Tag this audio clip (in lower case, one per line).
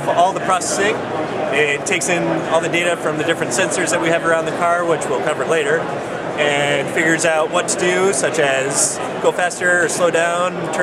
speech